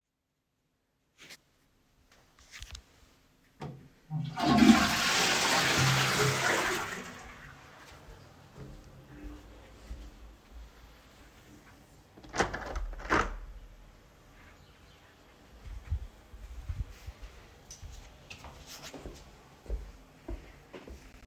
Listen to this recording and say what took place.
I flush the toilet. Afterwards, I open the window in the room and start walking away.